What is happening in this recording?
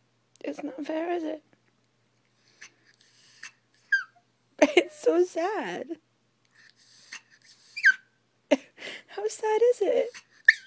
A woman talks and then a dog whimpers and then the woman continues to talk